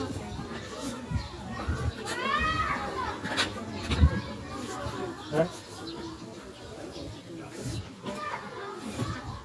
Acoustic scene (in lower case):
residential area